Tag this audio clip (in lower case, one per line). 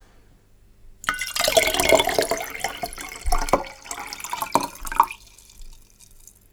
liquid